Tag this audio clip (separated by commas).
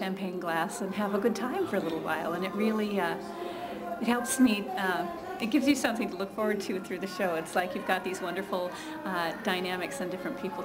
Speech